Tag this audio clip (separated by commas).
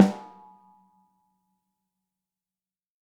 Snare drum, Percussion, Drum, Musical instrument, Music